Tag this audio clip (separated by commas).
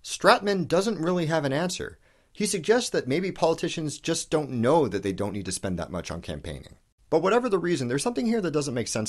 Speech